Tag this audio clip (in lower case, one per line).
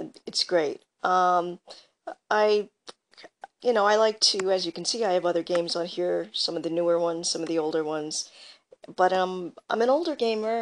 speech